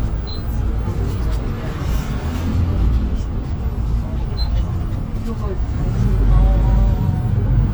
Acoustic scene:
bus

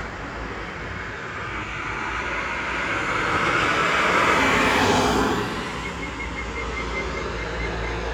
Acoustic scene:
street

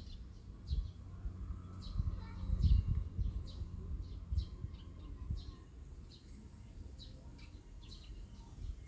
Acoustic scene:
park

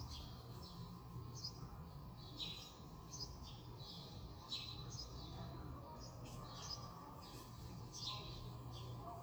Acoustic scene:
residential area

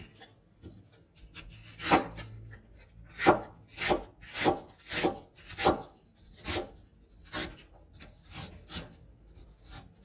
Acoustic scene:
kitchen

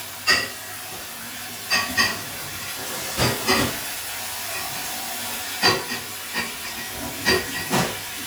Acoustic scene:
kitchen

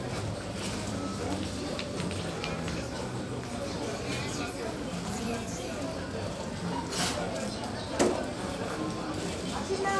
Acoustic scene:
crowded indoor space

